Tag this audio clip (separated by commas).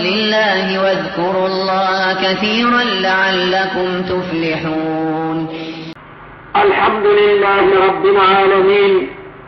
Speech